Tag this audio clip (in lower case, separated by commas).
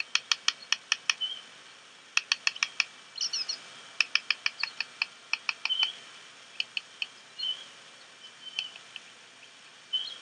animal, bird